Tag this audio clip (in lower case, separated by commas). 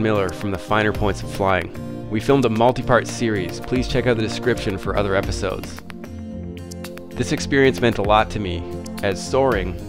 music, speech